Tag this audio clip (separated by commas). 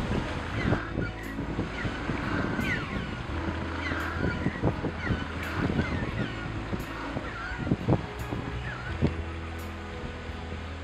penguins braying